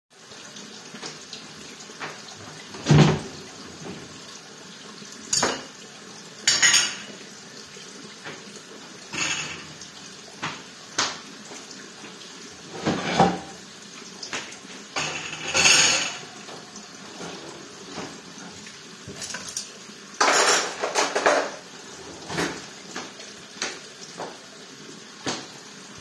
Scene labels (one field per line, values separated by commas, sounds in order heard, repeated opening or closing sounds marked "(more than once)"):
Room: kitchen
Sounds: running water, footsteps, wardrobe or drawer (more than once), cutlery and dishes